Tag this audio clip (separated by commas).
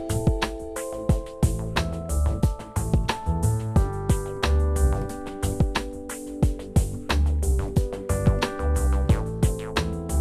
Music